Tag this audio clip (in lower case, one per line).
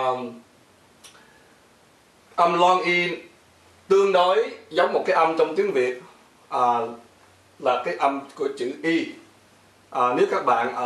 speech